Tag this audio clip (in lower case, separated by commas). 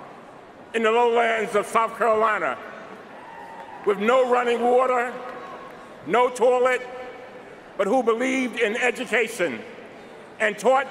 speech, male speech, narration